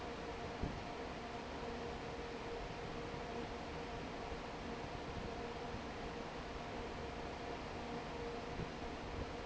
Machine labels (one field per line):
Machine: fan